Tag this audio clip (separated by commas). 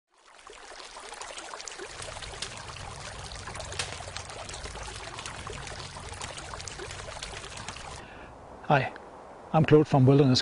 dribble